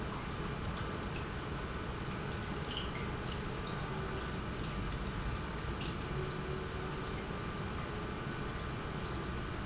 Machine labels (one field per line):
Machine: pump